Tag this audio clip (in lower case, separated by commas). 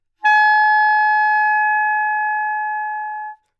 musical instrument, music, wind instrument